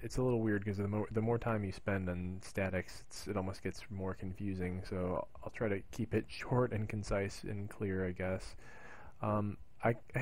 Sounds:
Speech

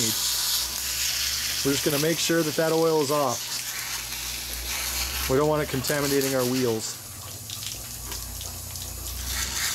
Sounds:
Speech

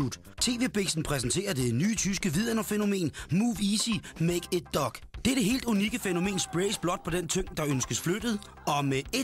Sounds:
Speech, Music

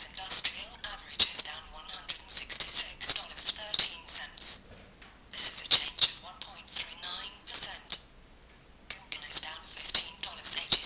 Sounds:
Speech

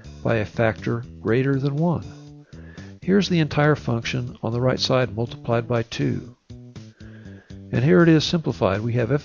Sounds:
monologue

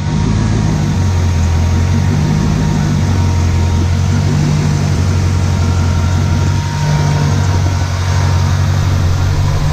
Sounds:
running electric fan

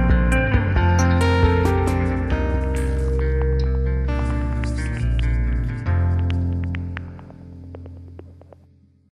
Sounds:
Music

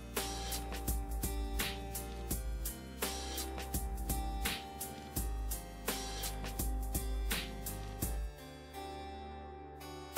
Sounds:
Music

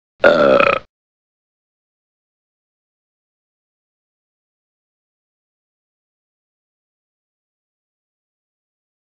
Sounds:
people burping

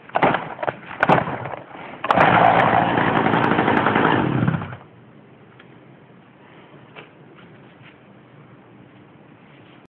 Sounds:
Chainsaw

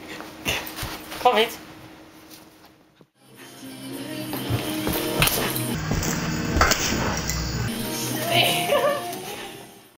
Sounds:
Music, Speech

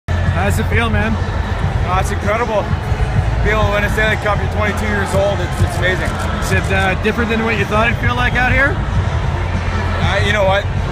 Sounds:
Music, Speech

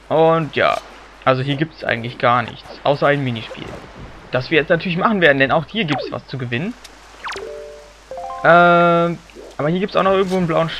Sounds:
Speech

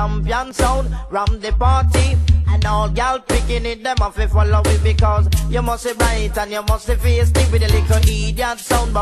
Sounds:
Rattle, Music

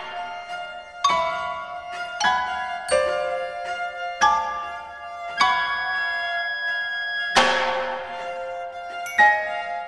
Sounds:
Percussion, Music

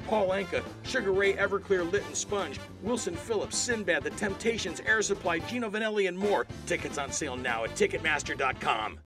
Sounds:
Music, Speech

